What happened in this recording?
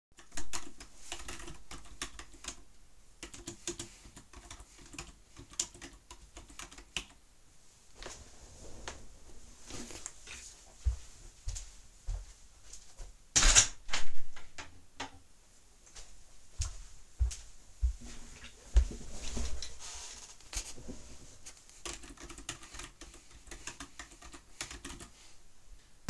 I was typing on a keyboard, then I stood up and walked to the window. I opened the window. Afterwards, i walked back to the desk and sat back down.